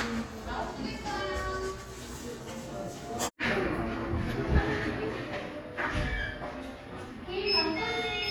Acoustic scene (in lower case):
crowded indoor space